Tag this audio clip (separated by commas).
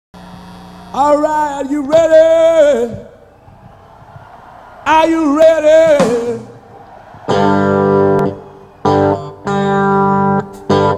Music, Guitar, Speech